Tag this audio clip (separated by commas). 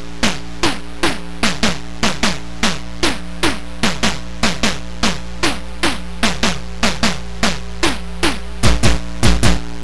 Music, Exciting music